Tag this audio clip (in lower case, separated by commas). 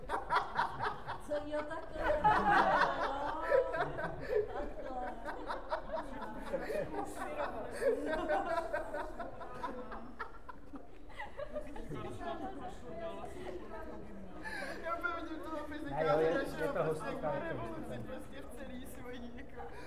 human voice, laughter